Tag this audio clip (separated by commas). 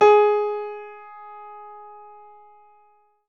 Piano, Music, Keyboard (musical), Musical instrument